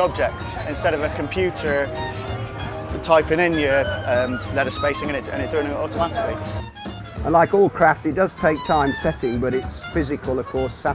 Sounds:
Speech, Music

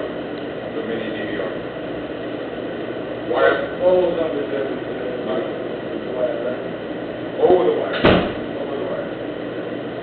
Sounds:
Speech

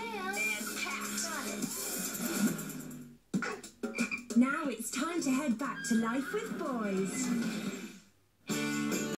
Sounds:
Speech, Music

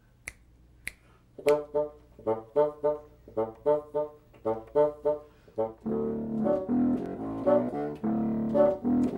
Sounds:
playing bassoon

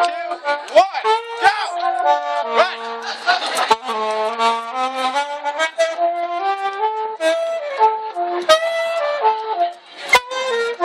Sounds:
Speech, Music

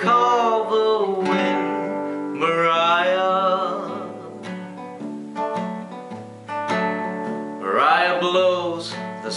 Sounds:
Music

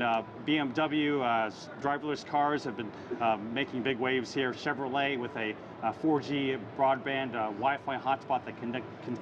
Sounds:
Speech

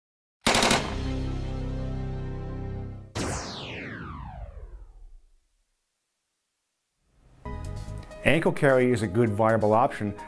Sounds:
gunfire, Machine gun

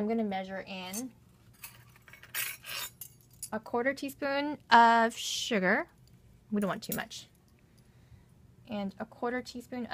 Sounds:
Speech

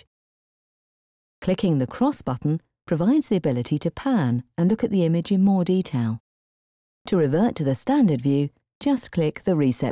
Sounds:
inside a small room, Speech

